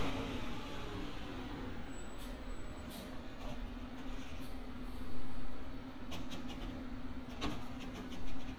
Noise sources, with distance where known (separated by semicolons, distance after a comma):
large-sounding engine